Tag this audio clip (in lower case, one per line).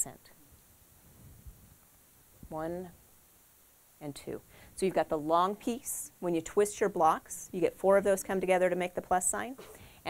speech